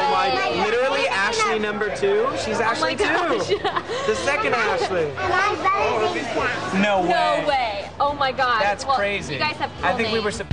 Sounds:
speech, music, children playing

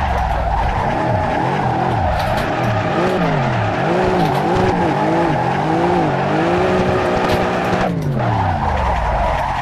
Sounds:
race car, car

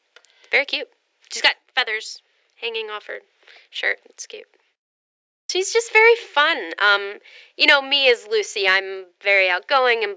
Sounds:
speech

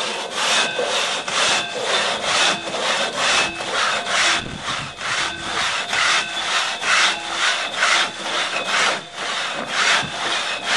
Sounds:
sawing, rub, wood

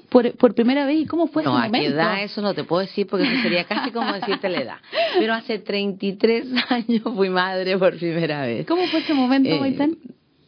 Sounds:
speech

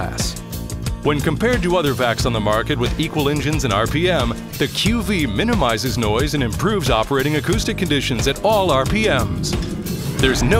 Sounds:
music, speech

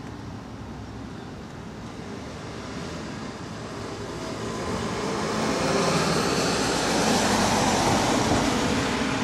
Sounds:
truck, vehicle

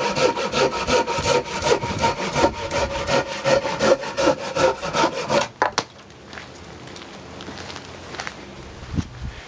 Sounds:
rub, sawing, wood

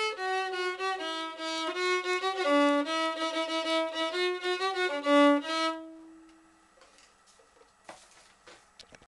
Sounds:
musical instrument, violin, music

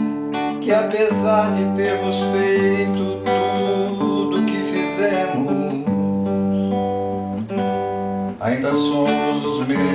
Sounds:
singing, music, bowed string instrument, musical instrument, guitar, plucked string instrument, acoustic guitar

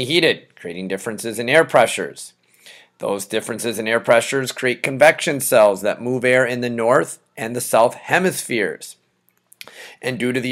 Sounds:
speech

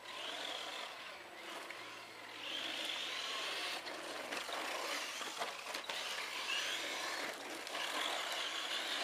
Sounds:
car

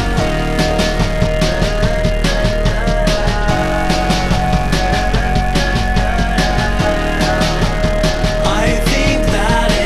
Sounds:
music

